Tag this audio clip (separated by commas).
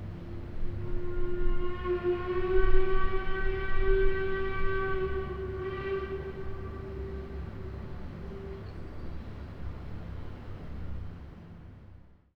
Alarm